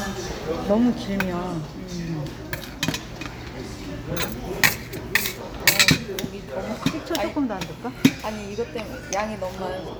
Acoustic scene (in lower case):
restaurant